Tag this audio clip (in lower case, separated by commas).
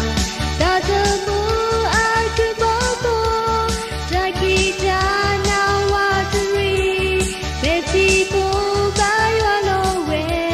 music